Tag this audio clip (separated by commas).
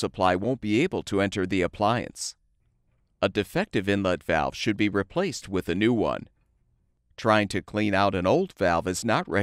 Speech